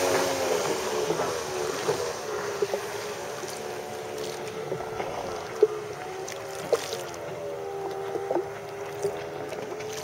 A motor boat is being driven in water and also paddling sound